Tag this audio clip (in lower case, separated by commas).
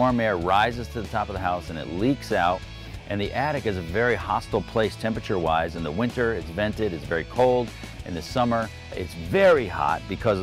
speech, music